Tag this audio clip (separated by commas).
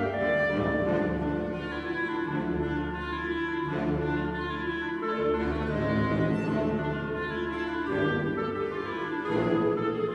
Orchestra, Music